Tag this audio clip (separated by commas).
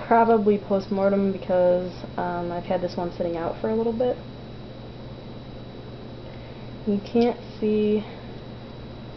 Speech